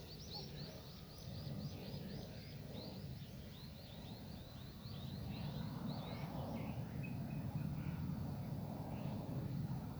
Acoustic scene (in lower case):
park